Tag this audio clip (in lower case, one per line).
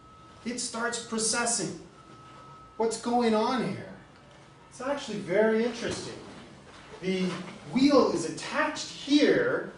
speech